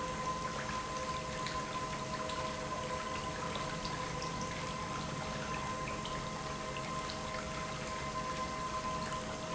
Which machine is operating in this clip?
pump